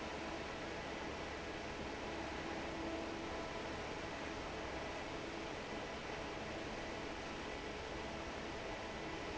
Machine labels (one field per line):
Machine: fan